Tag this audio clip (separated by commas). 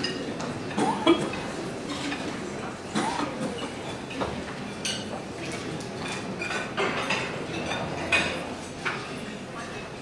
Speech